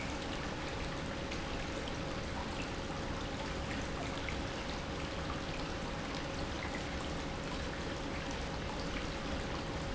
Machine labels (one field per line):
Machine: pump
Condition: normal